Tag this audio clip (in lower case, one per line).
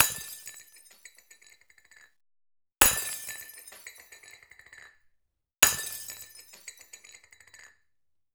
shatter
glass